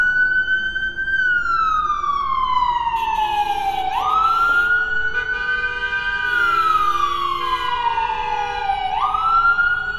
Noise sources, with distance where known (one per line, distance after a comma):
car horn
siren